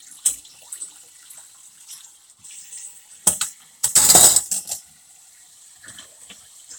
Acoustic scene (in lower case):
kitchen